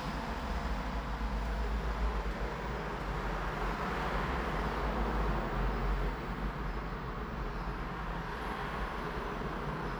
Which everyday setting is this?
elevator